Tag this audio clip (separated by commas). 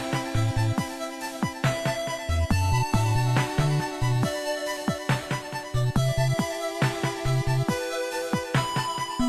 Music